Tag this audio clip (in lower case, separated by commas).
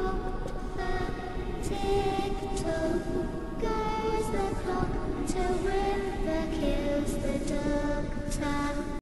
music